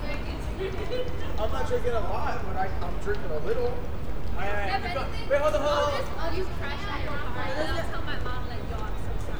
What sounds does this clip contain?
person or small group shouting